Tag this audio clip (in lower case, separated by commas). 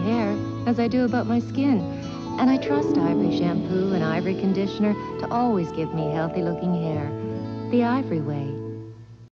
music, speech